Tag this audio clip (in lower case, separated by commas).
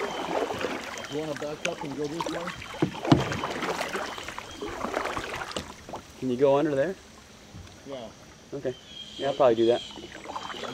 speech